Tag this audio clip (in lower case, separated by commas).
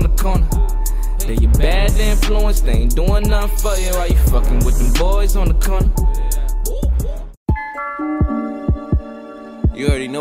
speech, music